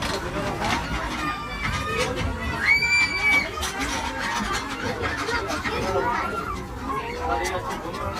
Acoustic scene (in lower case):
park